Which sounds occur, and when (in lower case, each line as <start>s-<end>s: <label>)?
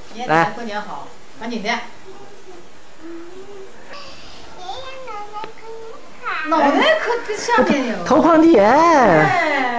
0.0s-9.7s: background noise
0.1s-1.0s: female speech
0.1s-9.7s: conversation
0.3s-0.5s: man speaking
1.4s-1.8s: female speech
2.0s-2.6s: kid speaking
2.9s-3.6s: kid speaking
3.9s-3.9s: generic impact sounds
3.9s-4.5s: scrape
4.6s-6.0s: kid speaking
5.4s-5.5s: tick
6.2s-6.6s: kid speaking
6.4s-7.9s: female speech
7.5s-7.6s: generic impact sounds
8.0s-9.3s: man speaking
9.1s-9.7s: female speech